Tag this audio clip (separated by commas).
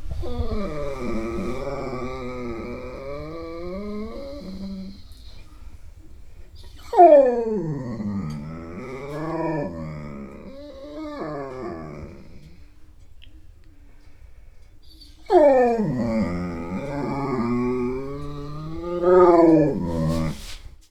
Dog, Domestic animals, Animal